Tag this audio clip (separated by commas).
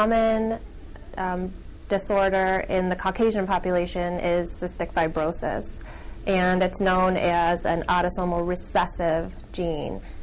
Female speech